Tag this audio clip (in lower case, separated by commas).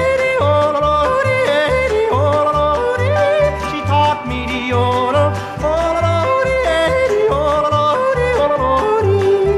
music, folk music